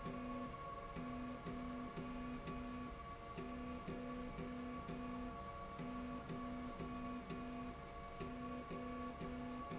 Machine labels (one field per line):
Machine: slide rail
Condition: normal